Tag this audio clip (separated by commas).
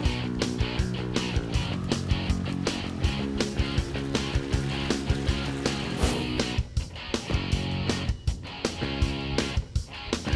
Music